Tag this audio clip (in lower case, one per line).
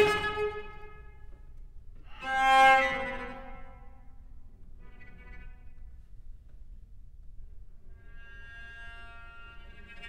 cello
musical instrument
music